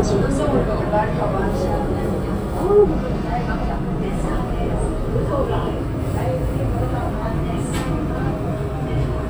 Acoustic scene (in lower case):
subway train